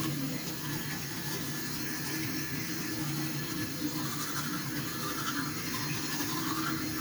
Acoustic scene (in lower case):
restroom